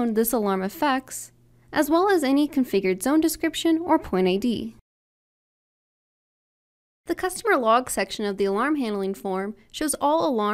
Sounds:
Speech

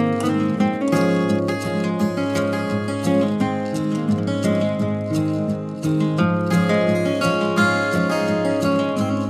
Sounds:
Music

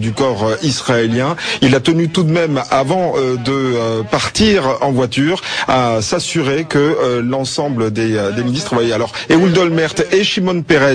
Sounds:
monologue, man speaking, Speech

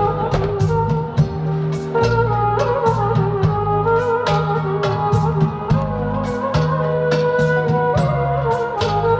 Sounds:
Music, Wedding music

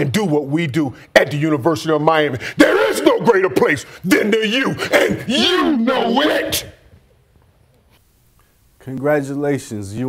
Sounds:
Speech, Whoop

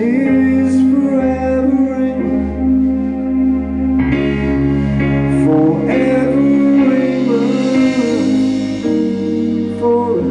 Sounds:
Music, Sampler

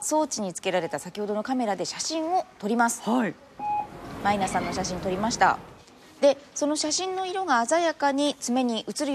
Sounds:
Speech

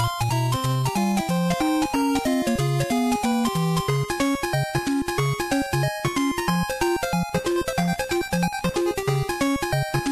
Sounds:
Music, Video game music

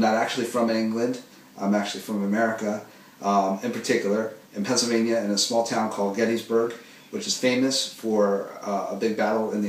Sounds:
Speech

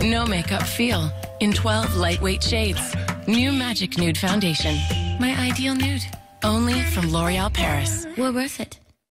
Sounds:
Music, Speech

